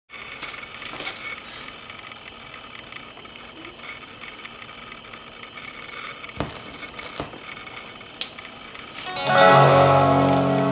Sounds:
music

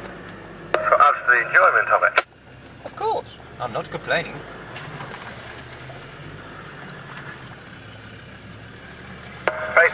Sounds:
car
speech
vehicle
outside, rural or natural

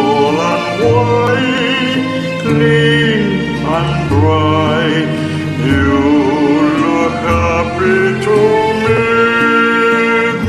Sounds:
tender music
music

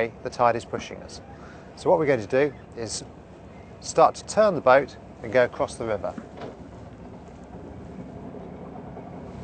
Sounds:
speech
sailboat

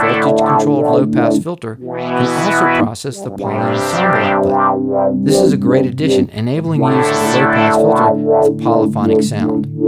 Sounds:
music
sidetone
synthesizer
musical instrument
speech

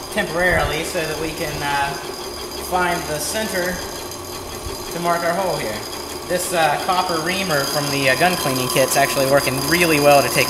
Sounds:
speech

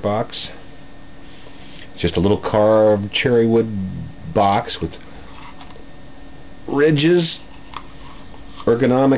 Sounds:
speech

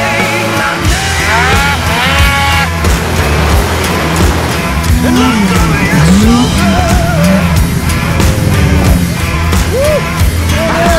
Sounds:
driving snowmobile

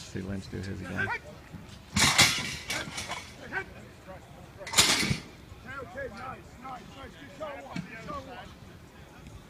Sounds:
speech

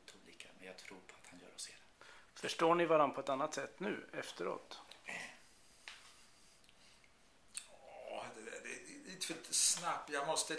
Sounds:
speech
conversation

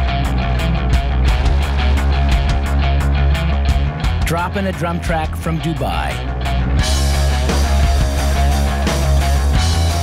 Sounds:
music
speech

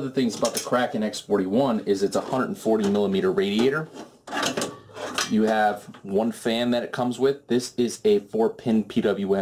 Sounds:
speech

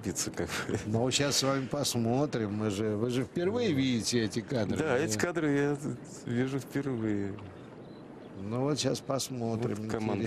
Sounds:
speech

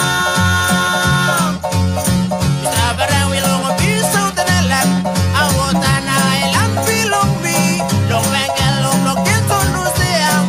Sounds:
music
exciting music

